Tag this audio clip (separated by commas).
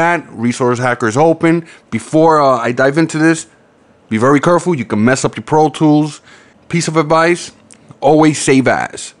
Speech